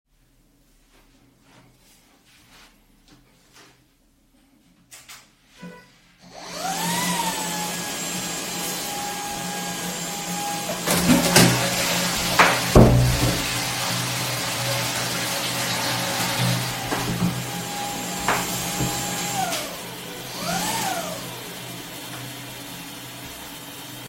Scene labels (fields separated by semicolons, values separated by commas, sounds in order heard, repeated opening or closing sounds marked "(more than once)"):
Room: hallway; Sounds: footsteps, vacuum cleaner, toilet flushing, door